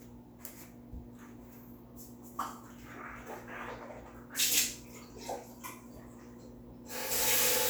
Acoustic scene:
restroom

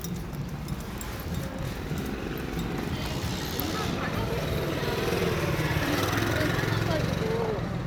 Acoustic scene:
residential area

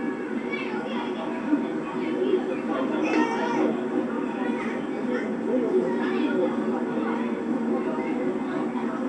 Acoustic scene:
park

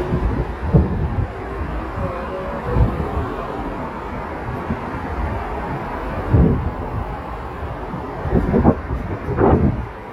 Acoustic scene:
street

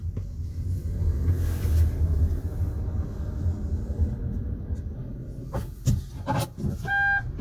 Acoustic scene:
car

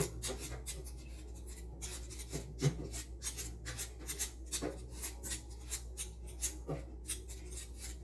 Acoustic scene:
kitchen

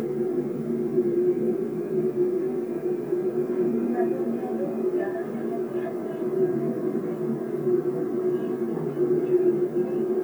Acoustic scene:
subway train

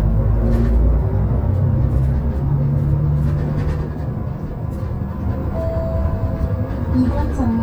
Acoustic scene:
bus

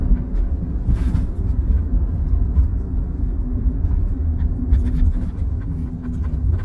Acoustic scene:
car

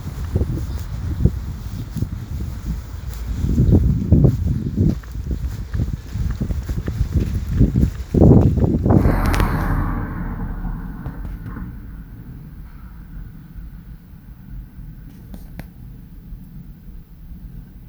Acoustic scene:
residential area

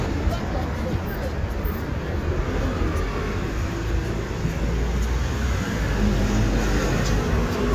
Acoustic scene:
residential area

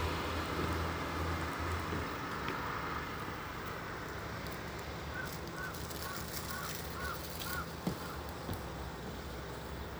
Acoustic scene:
street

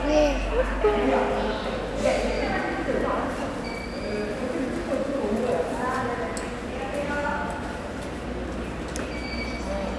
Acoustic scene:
subway station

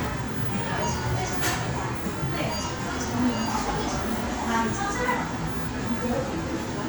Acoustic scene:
crowded indoor space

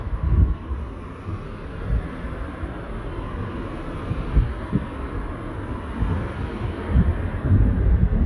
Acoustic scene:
street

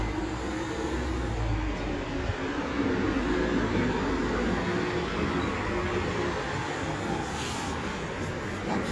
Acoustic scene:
street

